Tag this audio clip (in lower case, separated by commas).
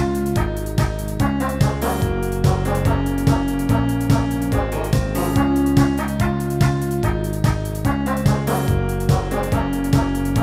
music